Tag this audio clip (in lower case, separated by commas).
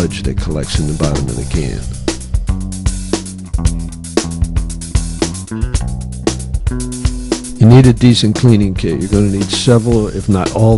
music, speech